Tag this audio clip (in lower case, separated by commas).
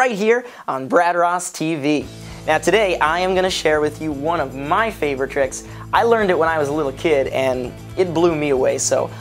speech, music